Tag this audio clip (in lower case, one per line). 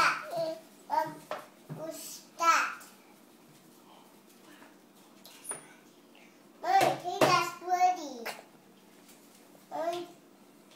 kid speaking
speech